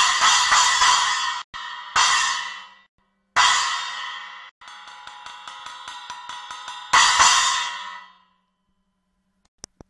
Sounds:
music

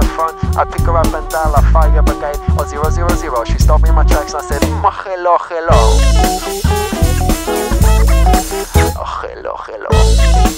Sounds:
music

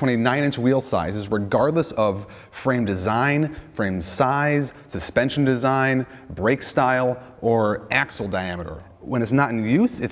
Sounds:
speech

